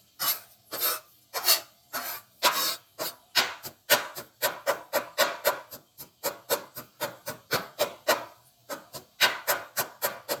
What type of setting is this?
kitchen